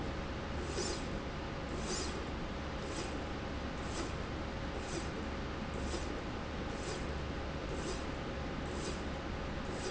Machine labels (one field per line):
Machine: slide rail